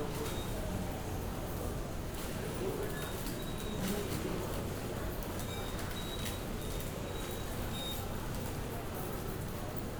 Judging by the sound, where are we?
in a subway station